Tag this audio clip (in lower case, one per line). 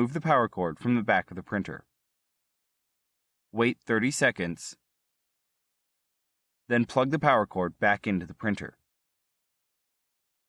speech